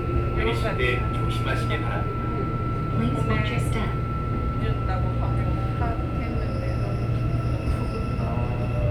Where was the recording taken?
on a subway train